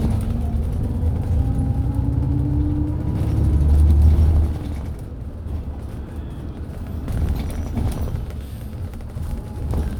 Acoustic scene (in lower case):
bus